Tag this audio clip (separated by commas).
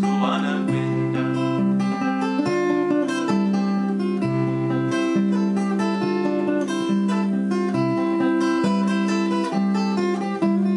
Acoustic guitar, Guitar, Musical instrument, Plucked string instrument, Strum, Music